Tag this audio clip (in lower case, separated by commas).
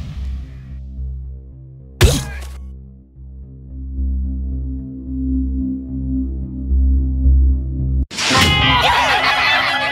bang, music